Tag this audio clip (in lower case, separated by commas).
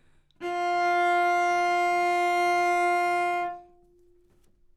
musical instrument, music, bowed string instrument